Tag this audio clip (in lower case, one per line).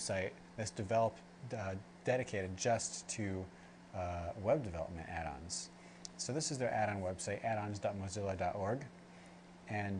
speech